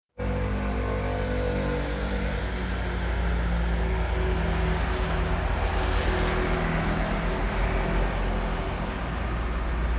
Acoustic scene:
street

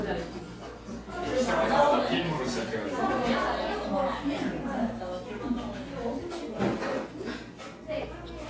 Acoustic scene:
cafe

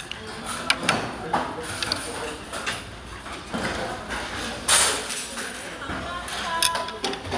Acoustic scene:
restaurant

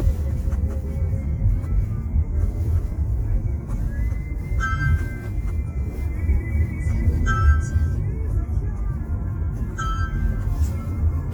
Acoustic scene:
car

